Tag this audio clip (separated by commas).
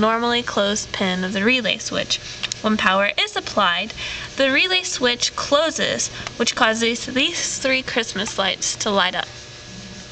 Speech